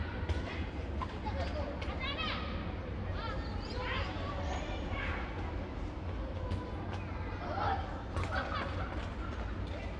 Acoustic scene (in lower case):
park